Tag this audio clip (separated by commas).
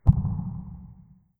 Explosion